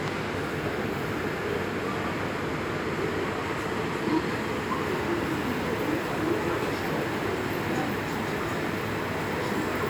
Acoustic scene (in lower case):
subway station